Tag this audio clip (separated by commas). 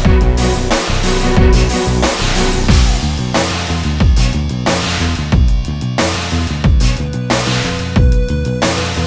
Music